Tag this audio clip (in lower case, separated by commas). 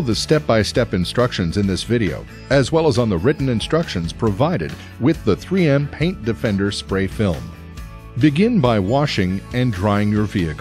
speech, music